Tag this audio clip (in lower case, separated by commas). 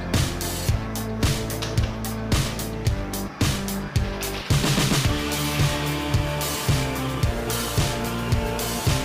music